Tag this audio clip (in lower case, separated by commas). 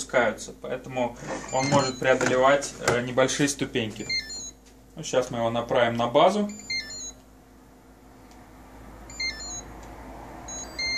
speech